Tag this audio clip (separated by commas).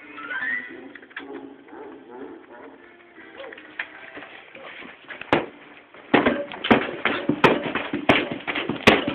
Music, Speech